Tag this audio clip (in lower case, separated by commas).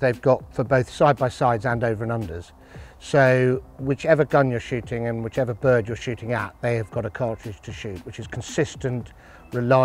speech